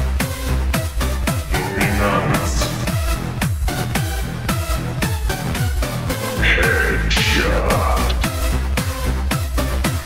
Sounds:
speech, music

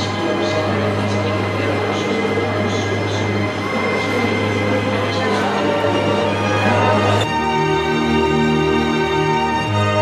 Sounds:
music, theme music

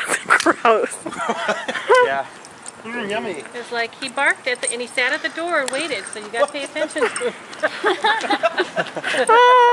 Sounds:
speech

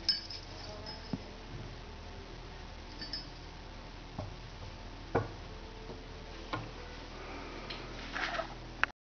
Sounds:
speech

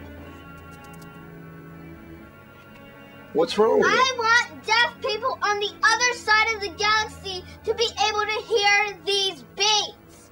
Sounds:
speech

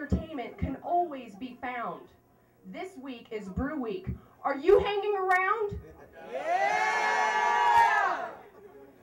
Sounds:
speech

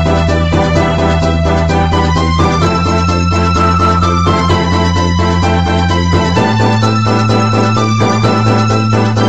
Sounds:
music, rhythm and blues

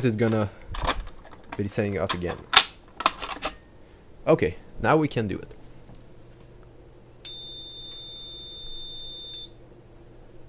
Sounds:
speech

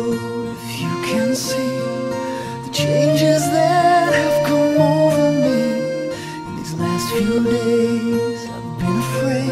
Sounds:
music

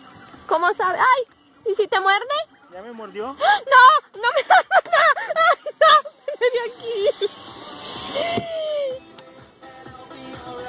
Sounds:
music, speech, outside, urban or man-made

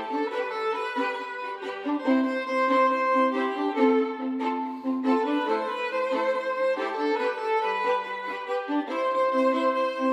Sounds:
fiddle, music, musical instrument

